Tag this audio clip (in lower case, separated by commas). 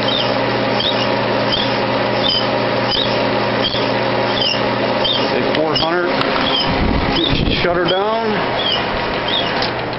speech